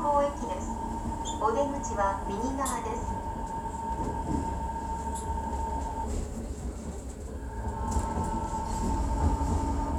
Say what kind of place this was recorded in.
subway train